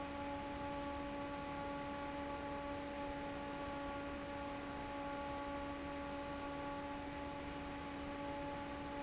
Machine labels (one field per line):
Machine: fan